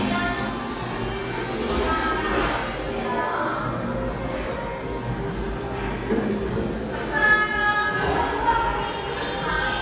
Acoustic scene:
cafe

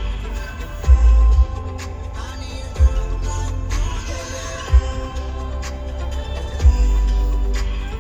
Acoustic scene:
car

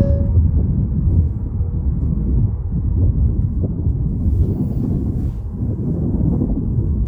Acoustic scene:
car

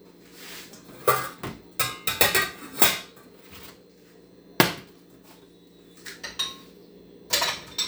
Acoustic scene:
kitchen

